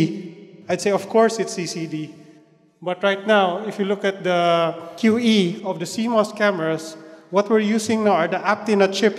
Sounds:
Speech

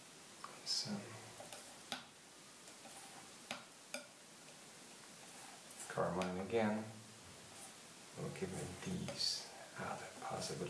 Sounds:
Speech

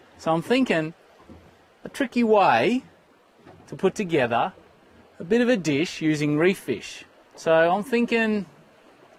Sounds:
Speech

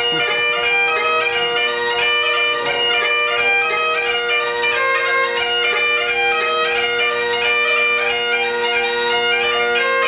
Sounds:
playing bagpipes, Musical instrument, Music, Bagpipes

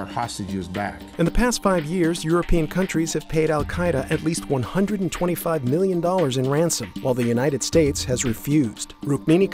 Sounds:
Speech, Music

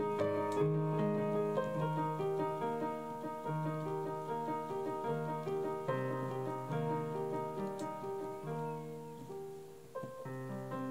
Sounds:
Music

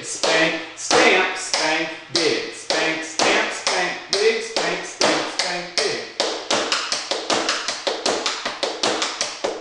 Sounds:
Speech

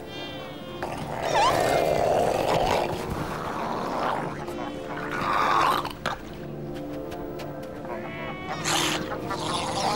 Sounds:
Animal, Music, Wild animals

